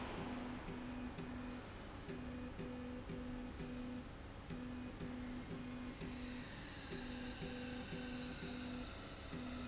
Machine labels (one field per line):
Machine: slide rail